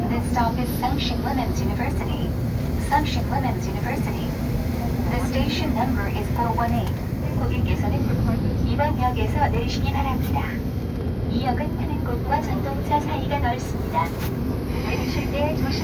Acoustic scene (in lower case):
subway train